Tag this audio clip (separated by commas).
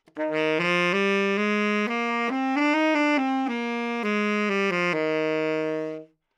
Musical instrument, Music, Wind instrument